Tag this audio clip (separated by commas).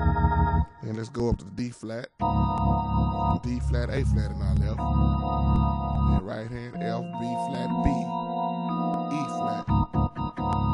Musical instrument, Music, Piano, Keyboard (musical), Speech